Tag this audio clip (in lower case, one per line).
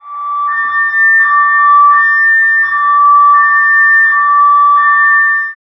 alarm
motor vehicle (road)
car
vehicle